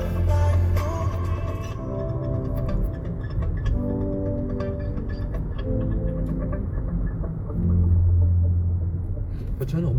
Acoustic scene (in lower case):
car